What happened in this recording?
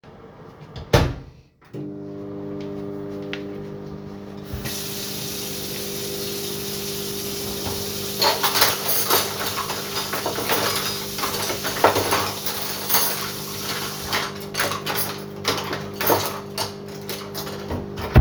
The phone was placed in the kitchen. The (running water and microwave run while dishes or cutlery are handled. These sounds overlap to create a polyphonic scene.